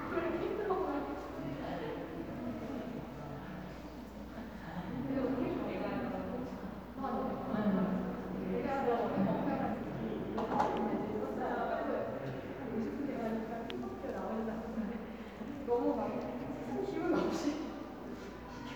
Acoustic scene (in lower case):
crowded indoor space